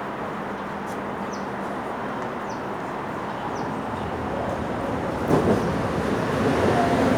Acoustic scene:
subway station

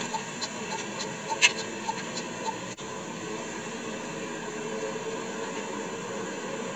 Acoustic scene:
car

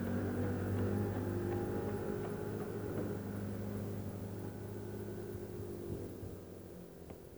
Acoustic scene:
residential area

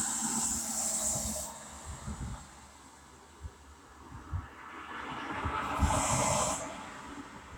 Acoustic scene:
street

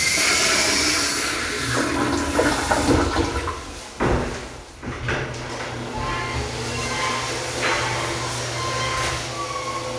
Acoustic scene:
restroom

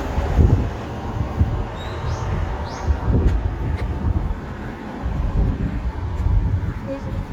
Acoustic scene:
street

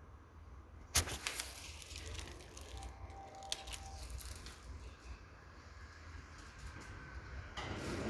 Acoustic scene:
elevator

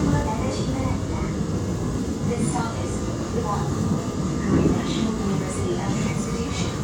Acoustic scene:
subway train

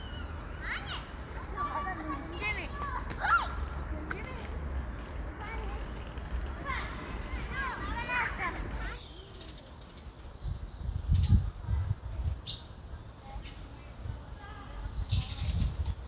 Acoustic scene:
park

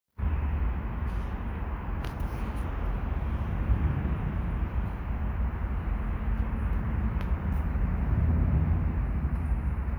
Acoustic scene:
residential area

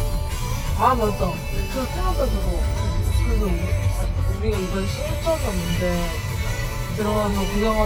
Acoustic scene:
car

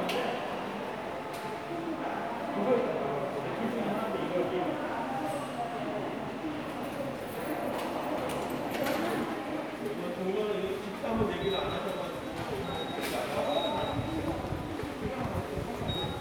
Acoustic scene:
subway station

